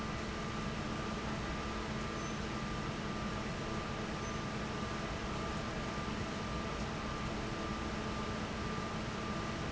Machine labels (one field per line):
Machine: fan